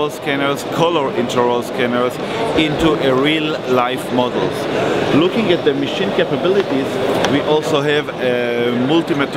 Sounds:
Speech

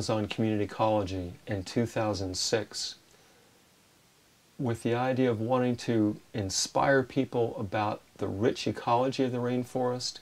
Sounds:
Speech

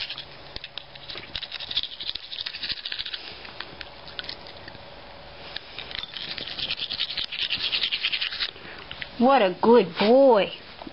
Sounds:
Speech, inside a small room

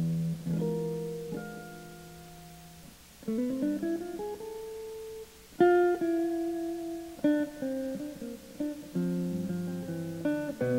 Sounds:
Guitar, Electric guitar, Acoustic guitar, Plucked string instrument, Music, Musical instrument

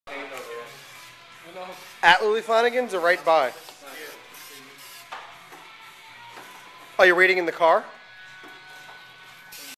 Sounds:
Speech, Music

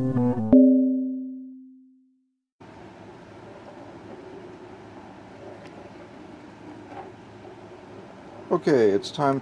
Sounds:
Speech, Music

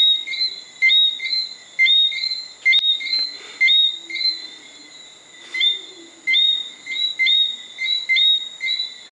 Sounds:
Animal, Frog

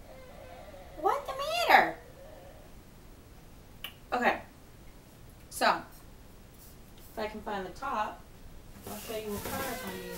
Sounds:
Rub

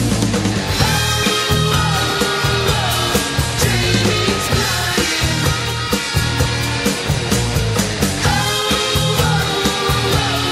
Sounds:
Heavy metal, Singing, Music

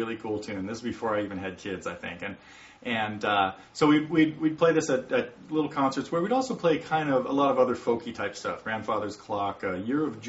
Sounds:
Speech

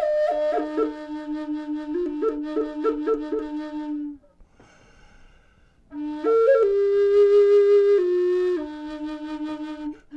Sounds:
woodwind instrument

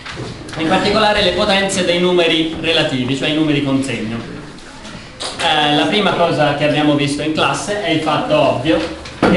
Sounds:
Speech

